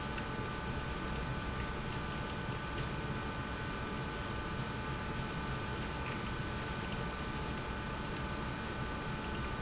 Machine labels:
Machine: pump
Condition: abnormal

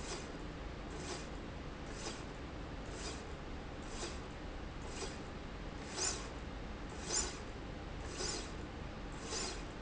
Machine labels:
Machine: slide rail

